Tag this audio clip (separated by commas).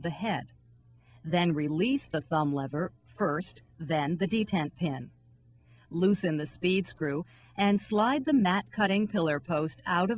Speech